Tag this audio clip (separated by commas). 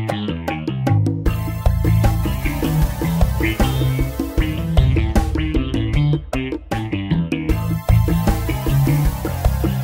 Music